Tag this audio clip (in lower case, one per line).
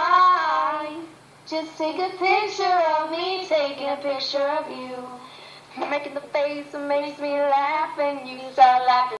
female singing